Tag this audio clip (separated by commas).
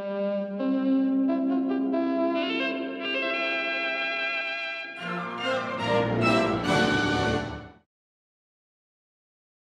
Music, Television